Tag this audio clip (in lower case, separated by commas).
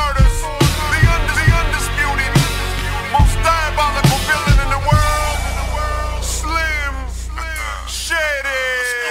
rapping, music